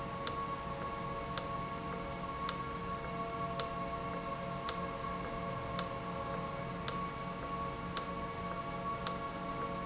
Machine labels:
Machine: valve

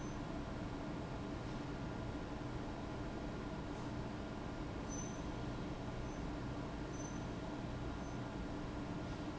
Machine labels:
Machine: fan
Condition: abnormal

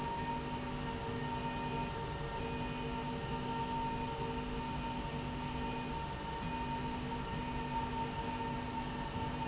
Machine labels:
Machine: slide rail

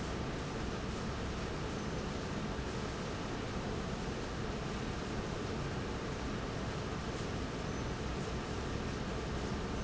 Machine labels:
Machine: fan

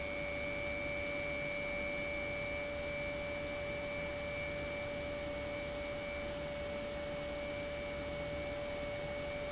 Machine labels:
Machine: pump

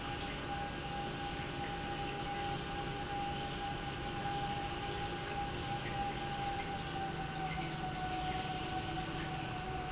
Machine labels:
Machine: pump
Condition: normal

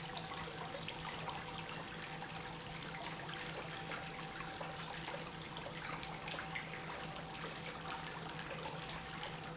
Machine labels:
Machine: pump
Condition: normal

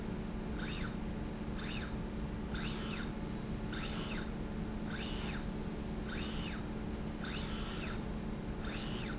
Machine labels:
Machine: slide rail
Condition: normal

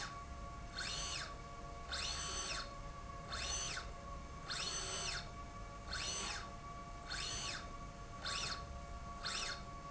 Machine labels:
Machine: slide rail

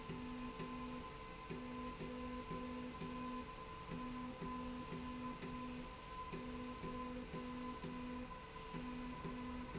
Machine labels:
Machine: slide rail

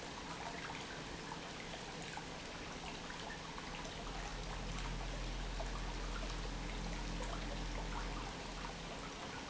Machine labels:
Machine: pump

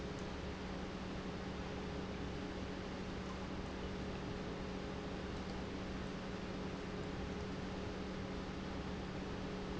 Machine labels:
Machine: pump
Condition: normal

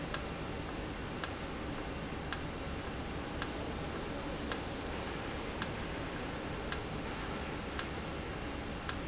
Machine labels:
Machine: valve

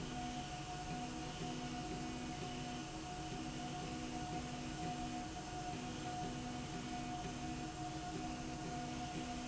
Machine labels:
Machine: slide rail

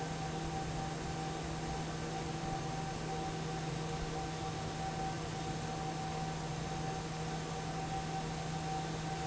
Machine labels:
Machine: fan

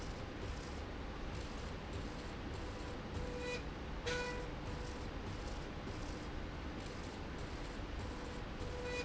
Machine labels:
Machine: slide rail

